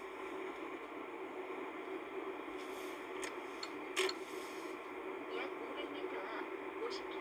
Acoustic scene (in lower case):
car